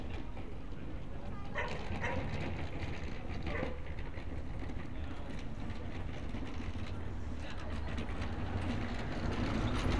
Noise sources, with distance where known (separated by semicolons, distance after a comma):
engine of unclear size; unidentified human voice; dog barking or whining, near